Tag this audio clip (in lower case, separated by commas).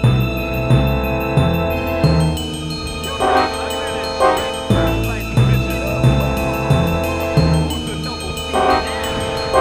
speech, music